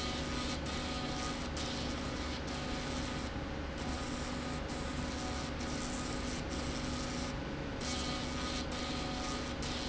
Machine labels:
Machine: slide rail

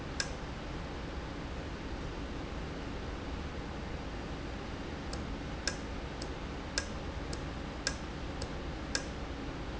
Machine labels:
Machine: valve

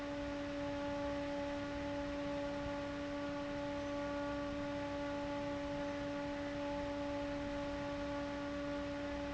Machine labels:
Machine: fan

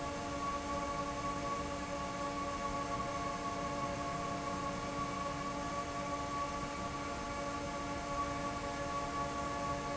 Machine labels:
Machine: fan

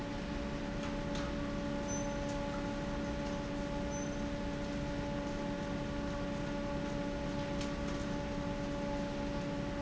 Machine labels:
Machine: fan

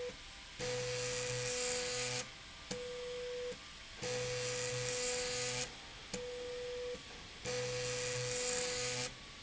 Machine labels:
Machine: slide rail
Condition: abnormal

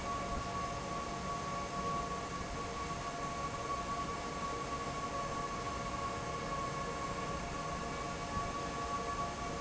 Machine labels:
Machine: fan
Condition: normal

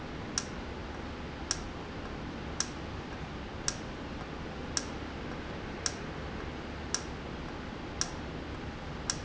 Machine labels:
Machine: valve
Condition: normal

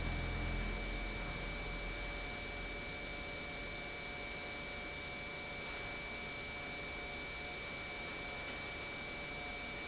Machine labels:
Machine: pump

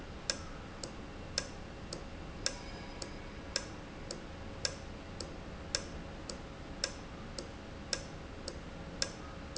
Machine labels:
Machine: valve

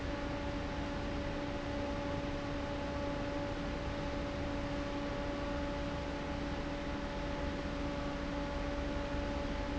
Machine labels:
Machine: fan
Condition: abnormal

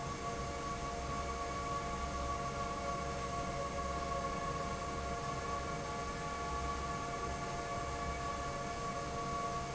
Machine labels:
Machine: fan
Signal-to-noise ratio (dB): -6 dB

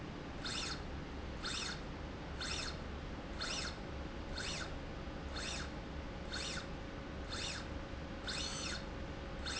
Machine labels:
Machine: slide rail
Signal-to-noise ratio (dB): 0 dB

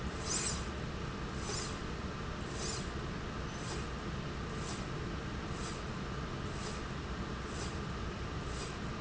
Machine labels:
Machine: slide rail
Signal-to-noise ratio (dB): -6 dB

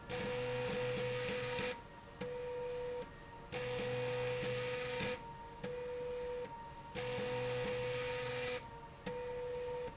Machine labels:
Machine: slide rail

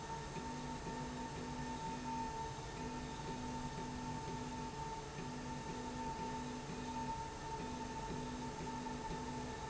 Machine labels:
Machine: slide rail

